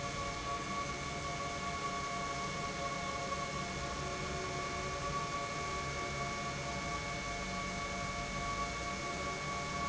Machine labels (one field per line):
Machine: pump